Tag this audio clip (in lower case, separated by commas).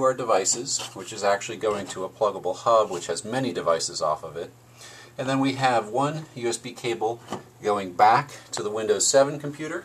speech